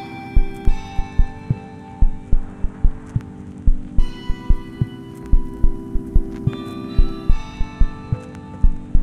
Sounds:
Ping, Music, Musical instrument

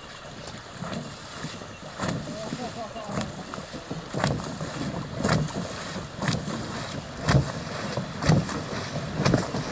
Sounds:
canoe

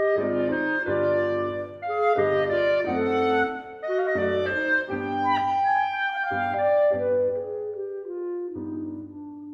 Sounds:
woodwind instrument

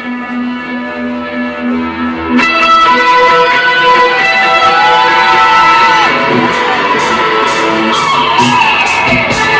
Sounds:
Music

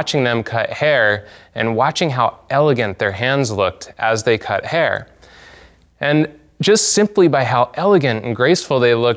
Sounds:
Speech

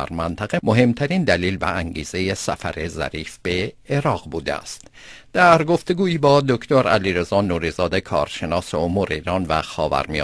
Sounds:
Speech

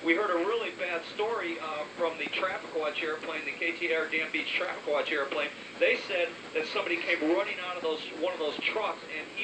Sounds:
Speech

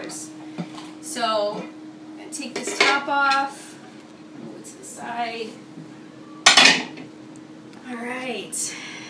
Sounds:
dishes, pots and pans, silverware, eating with cutlery

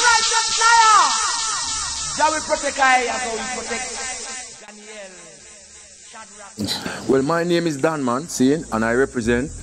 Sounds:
Speech

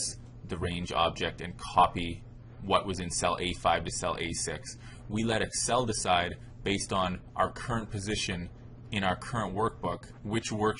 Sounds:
Speech

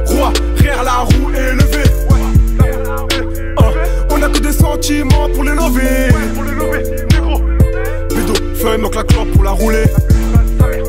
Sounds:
Music

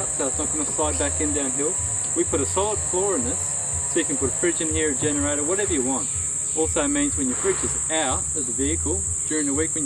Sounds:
Speech, Insect

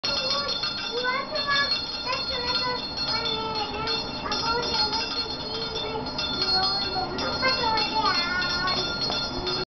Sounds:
Speech, Mantra

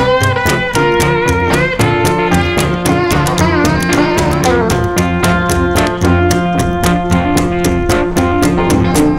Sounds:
playing washboard

